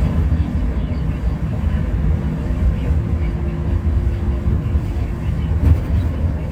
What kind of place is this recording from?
bus